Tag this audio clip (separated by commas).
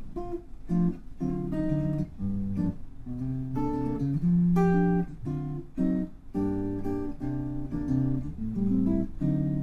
Guitar, Music, Musical instrument, Plucked string instrument